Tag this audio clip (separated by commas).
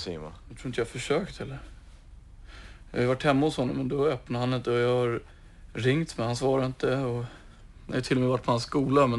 Speech